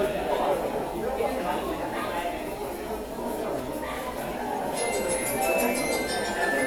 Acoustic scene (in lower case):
subway station